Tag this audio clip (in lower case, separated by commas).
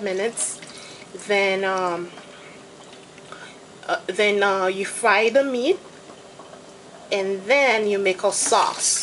sink (filling or washing), water